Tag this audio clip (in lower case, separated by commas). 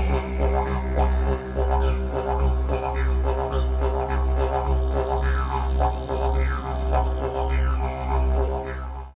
music